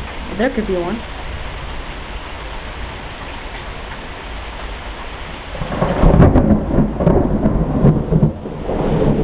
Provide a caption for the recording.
An individual is saying something in the rain followed by thunder pounding in the background